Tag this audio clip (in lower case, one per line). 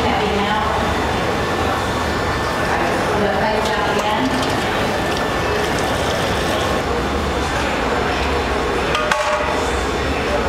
clink
speech